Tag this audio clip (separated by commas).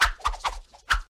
Whoosh